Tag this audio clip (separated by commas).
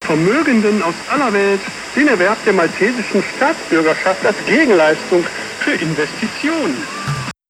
Male speech, Speech, Human voice